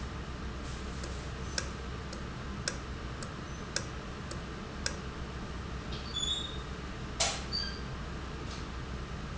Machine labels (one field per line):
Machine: valve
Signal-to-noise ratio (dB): -6 dB